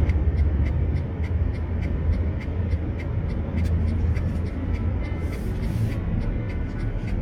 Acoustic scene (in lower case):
car